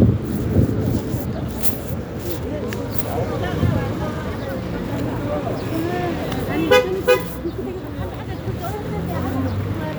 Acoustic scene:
residential area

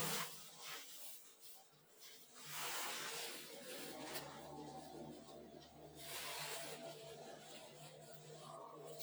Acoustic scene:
elevator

